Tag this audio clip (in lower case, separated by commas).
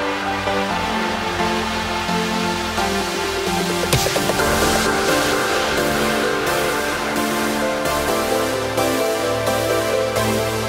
music, electronic dance music